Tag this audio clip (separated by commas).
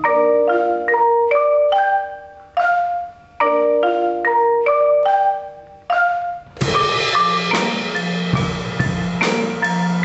Drum, Percussion, Musical instrument, Marimba, Music, Drum kit, Vibraphone